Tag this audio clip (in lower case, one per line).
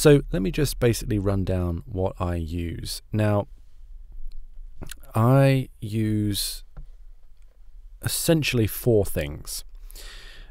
speech